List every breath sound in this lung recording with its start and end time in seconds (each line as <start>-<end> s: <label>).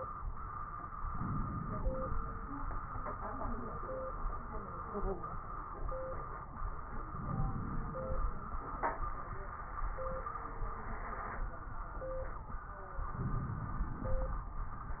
1.04-2.52 s: inhalation
7.07-8.29 s: crackles
7.08-8.30 s: inhalation
12.94-14.16 s: inhalation